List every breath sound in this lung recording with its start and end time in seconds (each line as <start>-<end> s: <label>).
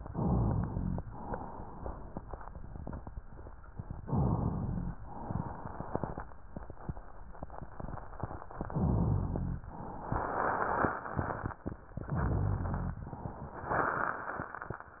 0.10-1.01 s: inhalation
0.12-1.03 s: rhonchi
1.06-2.59 s: exhalation
1.06-2.59 s: crackles
4.07-5.00 s: inhalation
4.08-4.97 s: rhonchi
4.99-6.40 s: exhalation
4.99-6.40 s: crackles
8.70-9.64 s: inhalation
8.71-9.64 s: rhonchi
11.96-13.05 s: inhalation
12.07-12.97 s: rhonchi